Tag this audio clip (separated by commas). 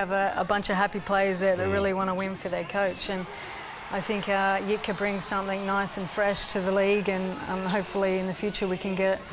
Speech